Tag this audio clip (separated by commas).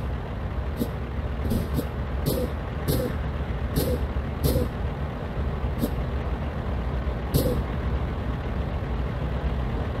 Truck, Vehicle